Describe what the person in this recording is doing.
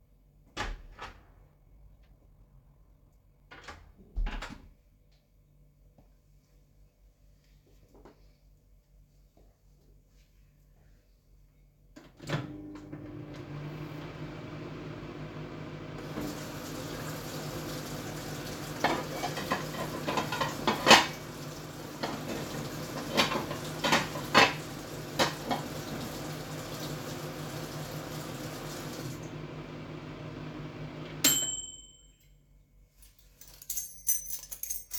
The door was opened and then closed. The microwave was started and with a partial overlap the tap was turned on. Shortly after, the sound of dishes appeared and overlapped with the running water. Finally, keys were picked up.